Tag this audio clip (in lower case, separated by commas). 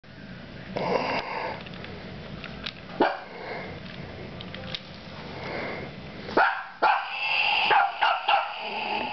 dog, inside a small room, domestic animals, animal